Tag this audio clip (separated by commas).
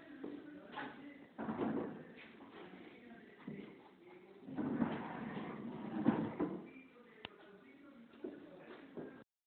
Sliding door